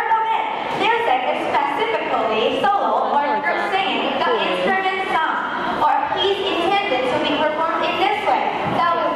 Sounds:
speech

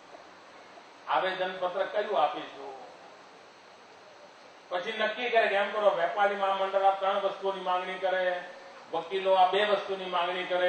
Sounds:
narration, male speech, speech

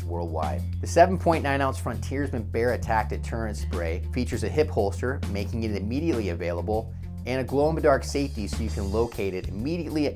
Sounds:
speech, music

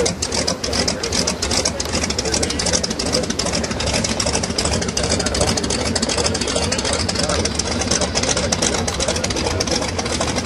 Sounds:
speech, idling, vehicle, aircraft

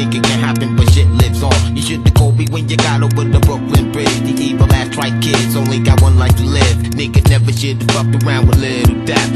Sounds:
music

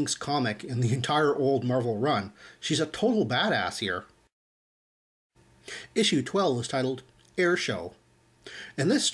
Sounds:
speech

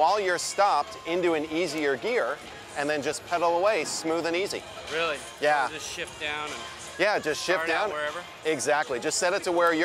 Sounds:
speech, music

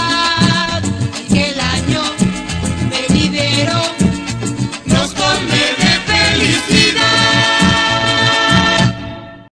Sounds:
jingle (music), music

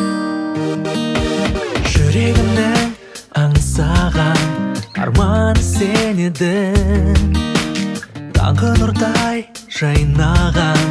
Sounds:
music

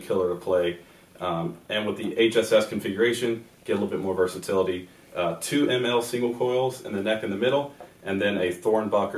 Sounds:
speech

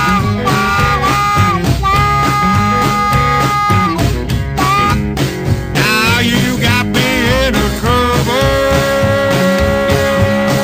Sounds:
music, rock and roll

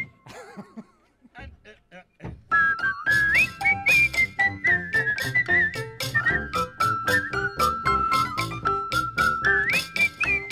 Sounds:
speech, bowed string instrument, music, musical instrument

